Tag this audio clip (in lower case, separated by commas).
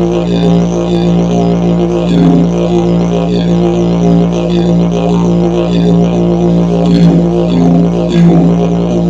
playing didgeridoo